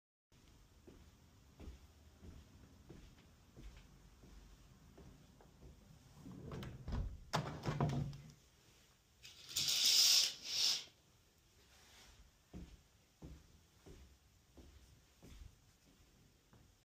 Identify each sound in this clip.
footsteps, window